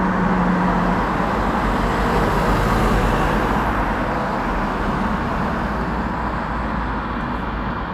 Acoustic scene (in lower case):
street